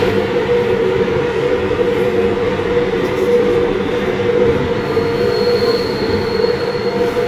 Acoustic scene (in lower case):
subway train